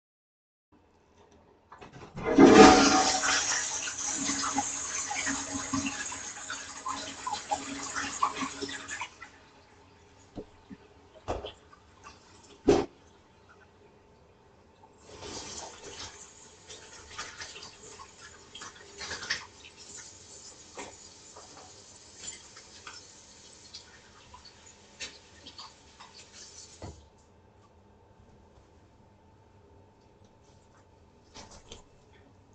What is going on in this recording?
I flushed the toilet and then washed my hands using soap from the dispenser. Then I dried my hands with a towel.